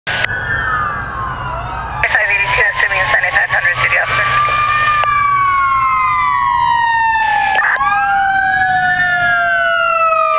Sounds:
fire engine
outside, urban or man-made
speech
vehicle
emergency vehicle

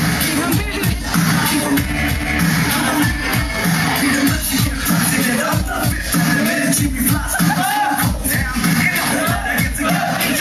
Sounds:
speech
music

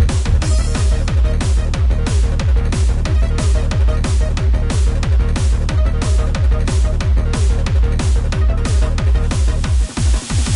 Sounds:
music

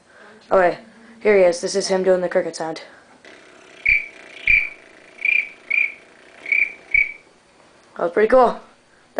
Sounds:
speech

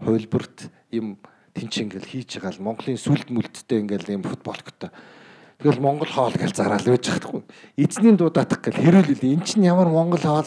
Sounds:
speech

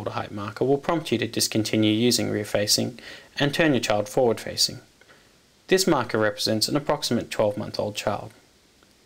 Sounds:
speech

